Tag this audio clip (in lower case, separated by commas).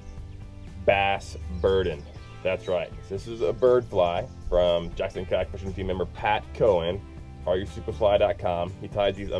music, speech